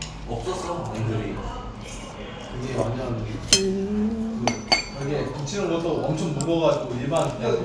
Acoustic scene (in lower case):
restaurant